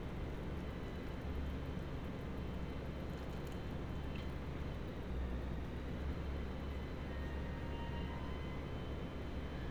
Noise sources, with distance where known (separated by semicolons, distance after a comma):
unidentified powered saw, far